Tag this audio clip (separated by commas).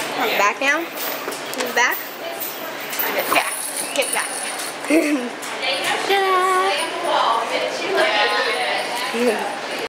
Speech